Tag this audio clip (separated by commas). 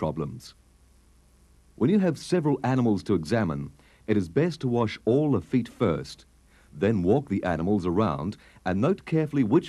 Speech